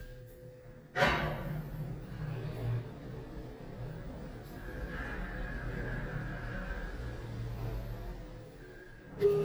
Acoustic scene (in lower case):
elevator